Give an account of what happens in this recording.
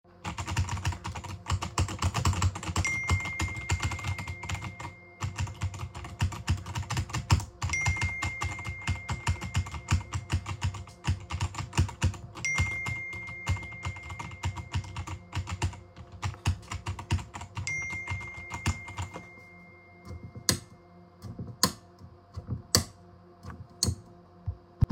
I sat at my desk and began typing on the keyboard. While typing my phone received a notification and started ringing creating an overlap of keyboard and phone sounds. I finished typing stood up and flipped the light switch off.